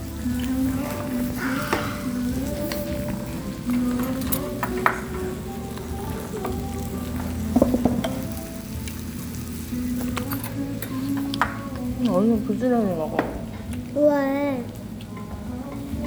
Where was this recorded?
in a restaurant